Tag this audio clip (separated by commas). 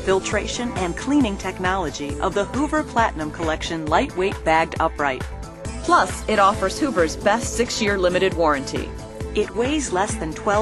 Speech, Music